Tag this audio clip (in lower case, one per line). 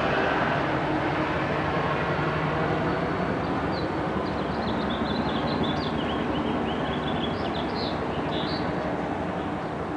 wind noise (microphone)